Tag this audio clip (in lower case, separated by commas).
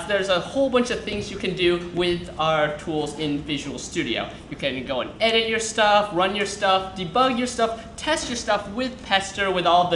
speech